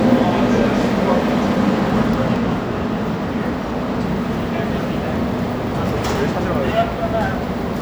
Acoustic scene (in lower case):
subway station